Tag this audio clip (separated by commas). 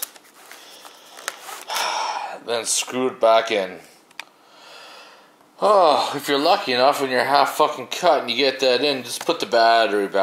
inside a small room, Speech